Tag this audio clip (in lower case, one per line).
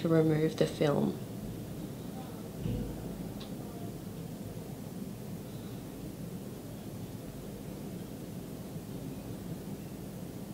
speech